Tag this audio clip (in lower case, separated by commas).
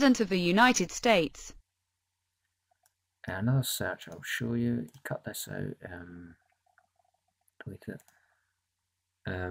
clicking, speech